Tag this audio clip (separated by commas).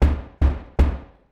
home sounds, Knock, Door